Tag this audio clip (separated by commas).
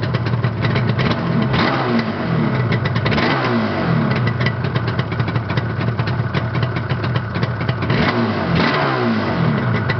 vroom, Vehicle